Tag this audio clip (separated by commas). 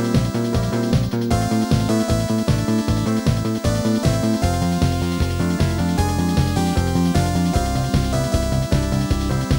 Music, Video game music